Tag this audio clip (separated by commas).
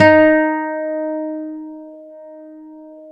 Guitar, Acoustic guitar, Music, Plucked string instrument, Musical instrument